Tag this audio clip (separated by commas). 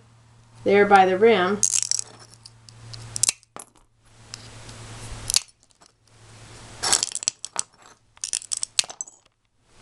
Speech